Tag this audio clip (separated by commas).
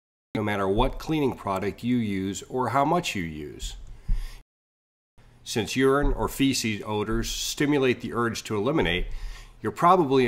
Speech